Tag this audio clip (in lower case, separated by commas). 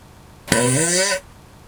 fart